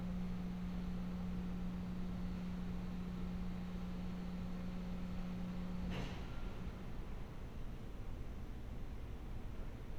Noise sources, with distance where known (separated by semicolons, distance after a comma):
background noise